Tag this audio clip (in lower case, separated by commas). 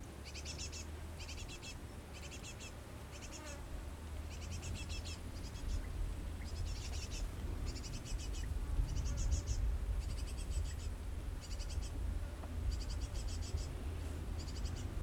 bird, wind, wild animals, animal, insect